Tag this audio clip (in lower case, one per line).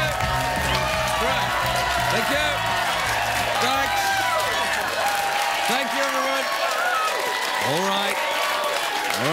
speech
narration
music